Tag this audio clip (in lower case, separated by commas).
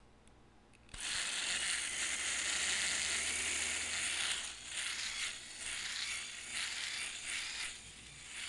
home sounds